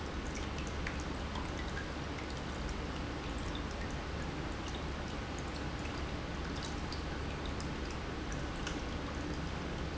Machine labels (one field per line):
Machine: pump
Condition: normal